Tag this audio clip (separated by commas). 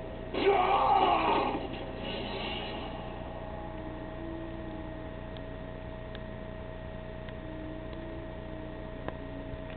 Music